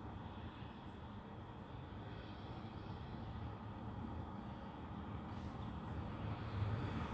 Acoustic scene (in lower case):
residential area